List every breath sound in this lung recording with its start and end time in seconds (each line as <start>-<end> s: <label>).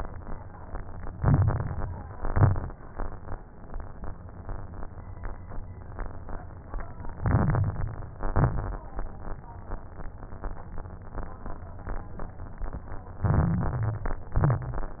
1.08-1.99 s: inhalation
1.08-1.99 s: crackles
2.07-2.77 s: exhalation
2.07-2.77 s: crackles
7.14-8.12 s: inhalation
7.14-8.12 s: crackles
8.13-8.83 s: exhalation
8.13-8.83 s: crackles
13.22-14.28 s: inhalation
13.22-14.28 s: crackles
14.35-15.00 s: exhalation
14.35-15.00 s: crackles